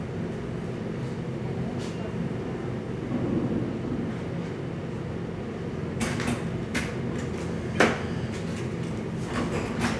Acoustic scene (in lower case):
cafe